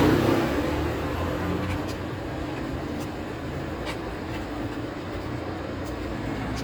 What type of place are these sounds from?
street